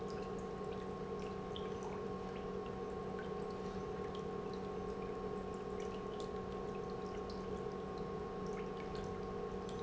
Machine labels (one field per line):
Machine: pump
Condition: normal